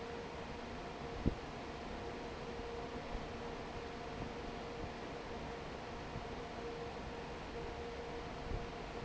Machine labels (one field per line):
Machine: fan